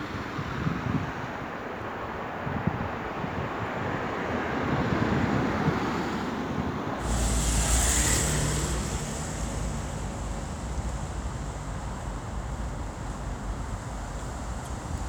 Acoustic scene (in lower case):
street